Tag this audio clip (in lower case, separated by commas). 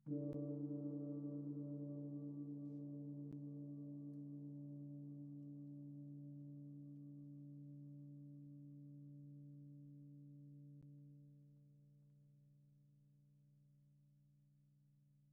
percussion, musical instrument, music, gong